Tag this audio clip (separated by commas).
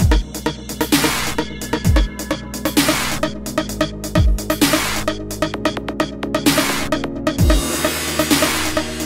Dubstep, Electronica, Music, Electronic music